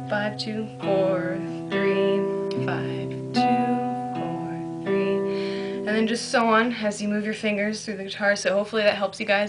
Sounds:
music, speech

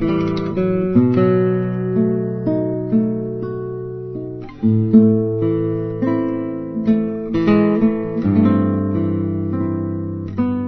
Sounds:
music, strum, musical instrument, guitar, electric guitar, plucked string instrument

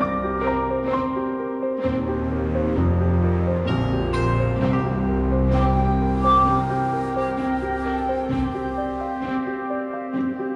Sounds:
background music, music

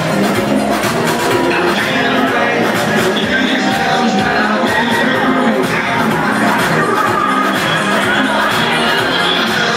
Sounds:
music, exciting music

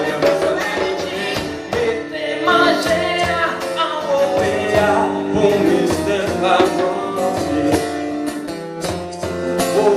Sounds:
music, guitar, singing, male singing, musical instrument

